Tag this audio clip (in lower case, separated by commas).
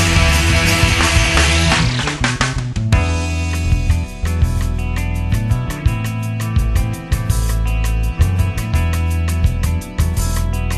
techno, electronic music, music